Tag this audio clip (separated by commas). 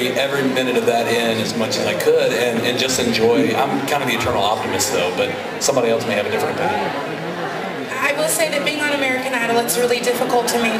Speech